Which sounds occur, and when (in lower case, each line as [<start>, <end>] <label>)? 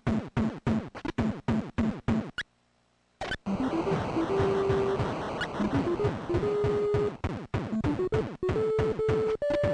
[0.00, 9.73] video game sound
[0.01, 2.41] sound effect
[3.18, 3.33] sound effect
[3.44, 9.73] music
[5.33, 9.73] sound effect